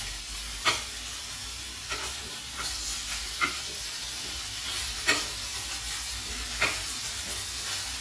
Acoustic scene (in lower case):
kitchen